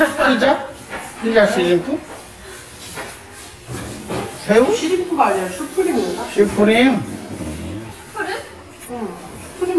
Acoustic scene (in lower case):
crowded indoor space